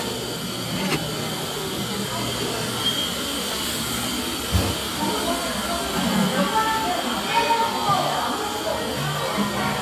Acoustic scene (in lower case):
cafe